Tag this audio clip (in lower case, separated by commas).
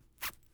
domestic sounds, zipper (clothing)